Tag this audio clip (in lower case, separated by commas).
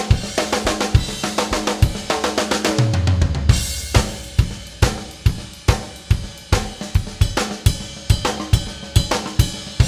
music